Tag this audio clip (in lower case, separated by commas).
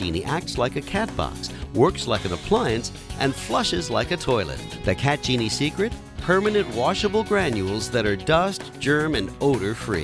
music, speech